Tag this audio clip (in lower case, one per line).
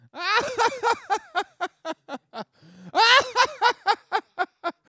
laughter
human voice